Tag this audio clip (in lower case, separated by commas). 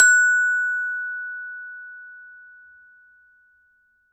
mallet percussion, percussion, musical instrument, glockenspiel, music